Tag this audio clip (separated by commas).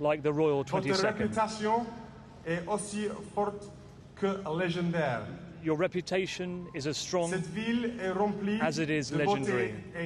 Speech, man speaking, monologue